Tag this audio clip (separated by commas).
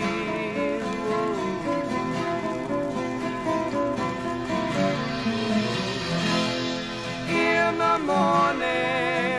Country, Music